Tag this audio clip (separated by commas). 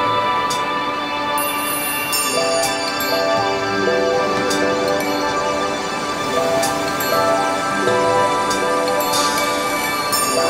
Music